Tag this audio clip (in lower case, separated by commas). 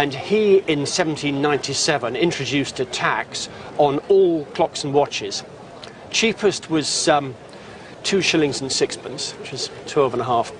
speech